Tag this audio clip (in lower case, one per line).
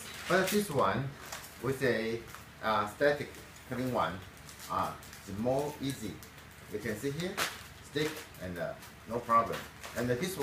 speech